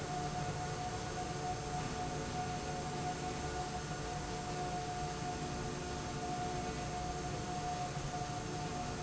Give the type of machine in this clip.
slide rail